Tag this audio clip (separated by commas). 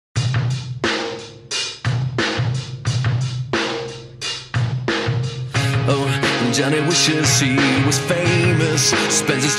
Rimshot, Drum kit, Percussion, Drum, Bass drum, Snare drum